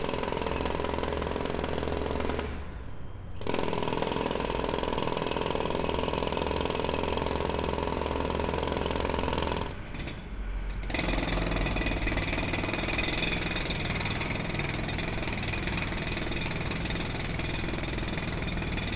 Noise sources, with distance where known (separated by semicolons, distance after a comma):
jackhammer, near